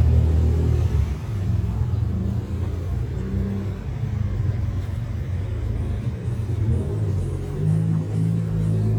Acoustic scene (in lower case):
street